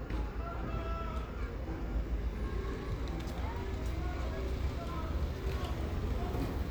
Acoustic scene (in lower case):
residential area